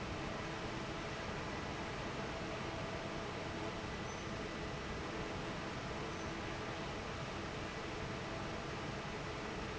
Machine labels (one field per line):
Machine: fan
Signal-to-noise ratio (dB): 0 dB